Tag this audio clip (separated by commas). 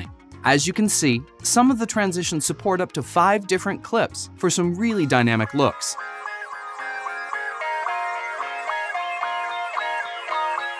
Music, Speech